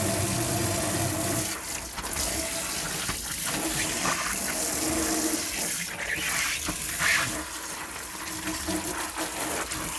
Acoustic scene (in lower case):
kitchen